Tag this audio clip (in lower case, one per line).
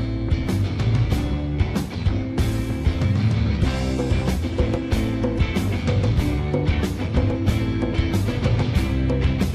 music